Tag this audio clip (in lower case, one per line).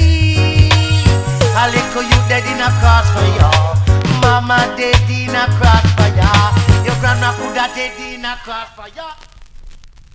music